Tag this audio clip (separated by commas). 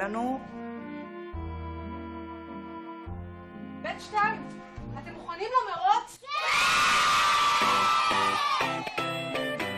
Music, Speech, inside a large room or hall